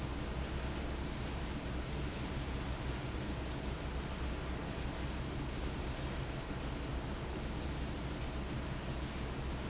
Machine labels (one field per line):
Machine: fan